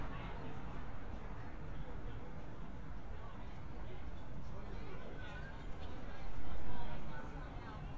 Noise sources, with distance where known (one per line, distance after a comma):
person or small group talking, far